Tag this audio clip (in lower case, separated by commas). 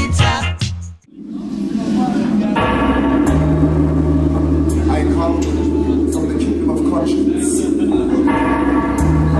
music, speech, sound effect